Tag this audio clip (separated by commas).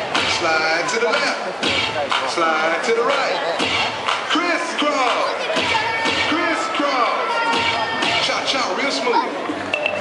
Speech, Music